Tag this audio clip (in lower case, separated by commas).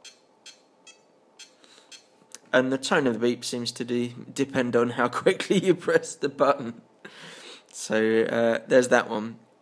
speech